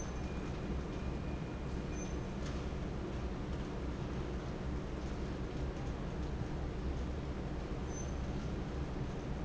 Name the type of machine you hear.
fan